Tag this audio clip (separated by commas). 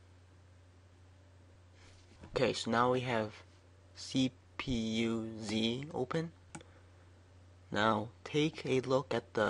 Speech, Clicking